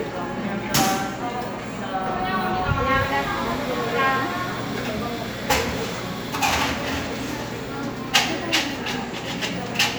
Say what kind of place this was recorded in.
cafe